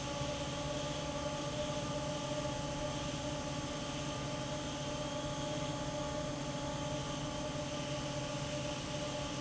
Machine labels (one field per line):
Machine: fan